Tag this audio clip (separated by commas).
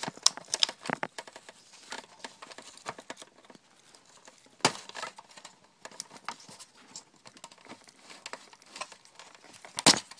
inside a small room